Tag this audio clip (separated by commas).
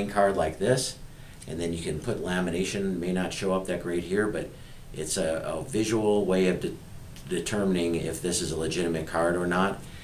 Speech